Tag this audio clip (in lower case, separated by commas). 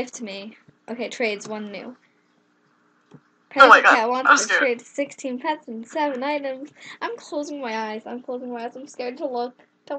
speech